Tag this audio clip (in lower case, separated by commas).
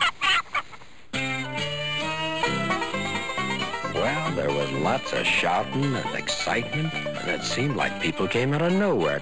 outside, rural or natural, music, speech